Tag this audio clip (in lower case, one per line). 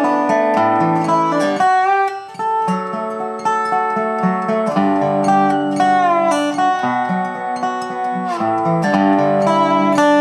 music